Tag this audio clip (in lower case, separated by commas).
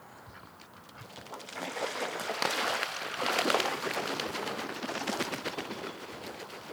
wild animals, animal, bird, water